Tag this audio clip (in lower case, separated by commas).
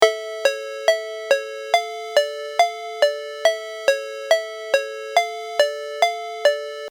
ringtone, alarm, telephone